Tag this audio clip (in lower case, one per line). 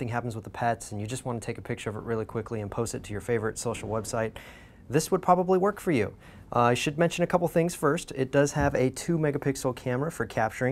speech